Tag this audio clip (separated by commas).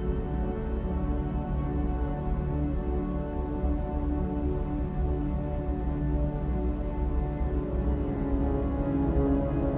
Music, Theme music